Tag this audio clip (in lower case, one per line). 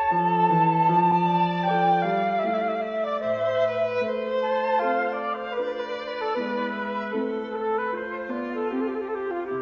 musical instrument
music